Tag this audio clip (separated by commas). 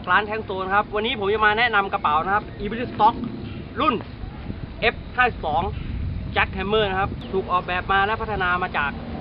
Speech